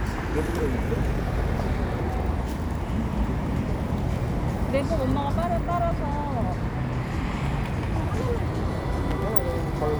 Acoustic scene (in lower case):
street